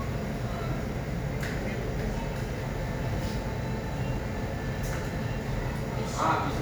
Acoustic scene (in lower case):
cafe